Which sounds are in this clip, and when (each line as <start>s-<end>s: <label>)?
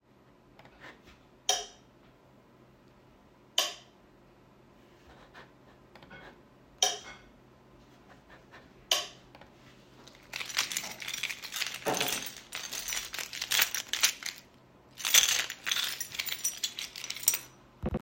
1.3s-1.7s: light switch
3.5s-3.8s: light switch
6.7s-7.2s: light switch
8.8s-9.2s: light switch
10.4s-14.4s: keys
14.9s-17.5s: keys